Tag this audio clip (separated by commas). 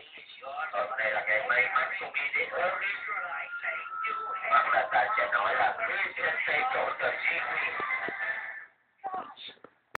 Music, Speech